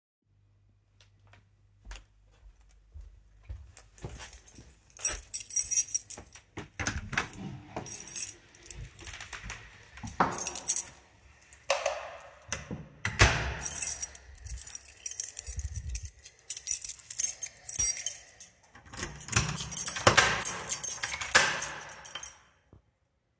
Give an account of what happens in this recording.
I walked to the frontdoor while i took my keys out of my pocket. I opened the frontdoor, while someone flushed the toilet. I walked out of the door, closed the door, activated the light switch and locked the door with my keys.